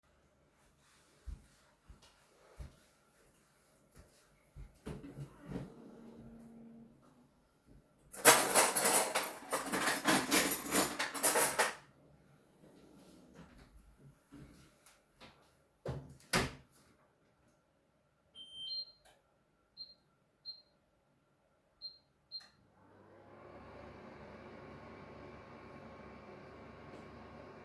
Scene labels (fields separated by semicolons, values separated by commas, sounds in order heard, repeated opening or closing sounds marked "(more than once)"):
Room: kitchen; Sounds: footsteps, wardrobe or drawer, cutlery and dishes, microwave